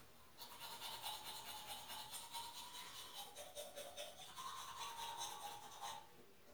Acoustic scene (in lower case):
restroom